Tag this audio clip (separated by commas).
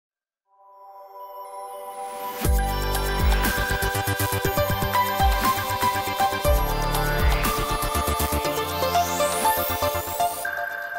Music